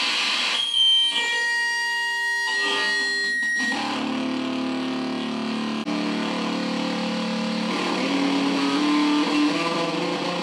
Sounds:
playing bass guitar

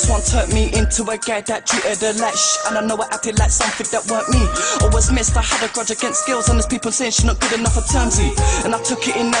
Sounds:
music, rhythm and blues

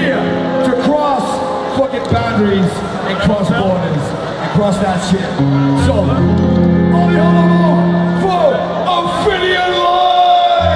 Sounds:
music, speech

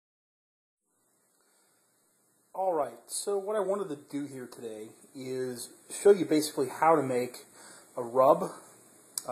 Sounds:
inside a small room, silence, speech

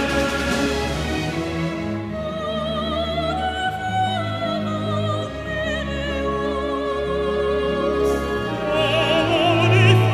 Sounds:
theme music, music

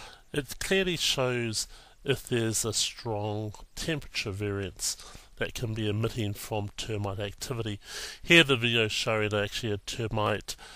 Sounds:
speech

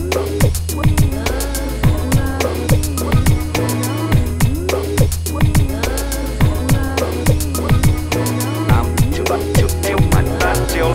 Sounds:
music

